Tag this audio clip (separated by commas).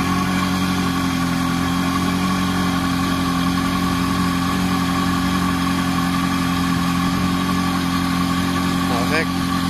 Vehicle, Speech, Medium engine (mid frequency), Idling, Car, Engine